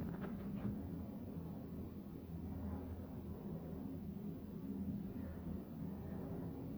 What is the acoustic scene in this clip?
elevator